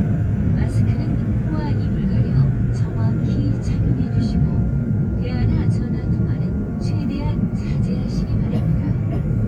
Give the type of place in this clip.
subway train